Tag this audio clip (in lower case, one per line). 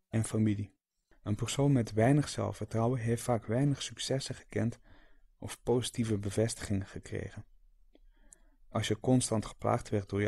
speech